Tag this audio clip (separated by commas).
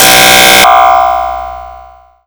Alarm